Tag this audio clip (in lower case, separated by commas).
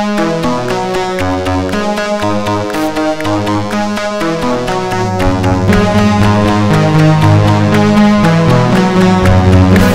playing synthesizer